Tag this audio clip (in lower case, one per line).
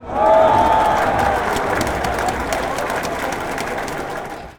crowd
human group actions